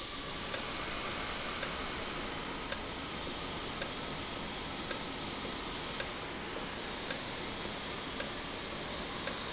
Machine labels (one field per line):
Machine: valve